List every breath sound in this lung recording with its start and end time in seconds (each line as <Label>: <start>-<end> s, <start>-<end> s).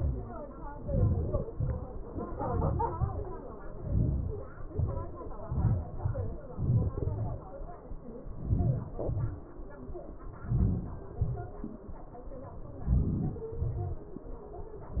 Inhalation: 0.82-1.43 s, 2.37-2.91 s, 3.87-4.48 s, 8.50-8.92 s, 10.52-11.05 s, 12.94-13.53 s
Exhalation: 1.52-1.91 s, 2.99-3.33 s, 4.72-5.13 s, 9.04-9.43 s, 11.23-11.62 s, 13.62-14.03 s